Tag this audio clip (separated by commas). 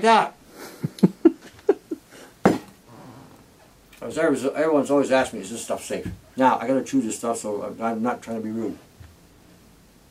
Speech, inside a small room